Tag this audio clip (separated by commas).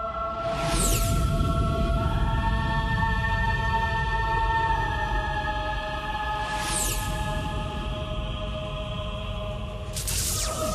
Music